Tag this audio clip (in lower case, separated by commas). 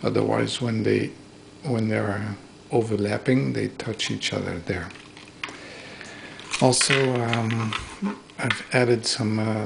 inside a small room, speech